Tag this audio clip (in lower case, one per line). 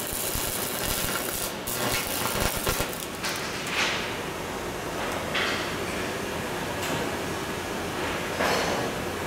arc welding